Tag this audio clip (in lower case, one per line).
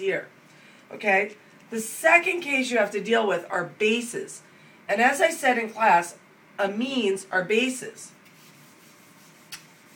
speech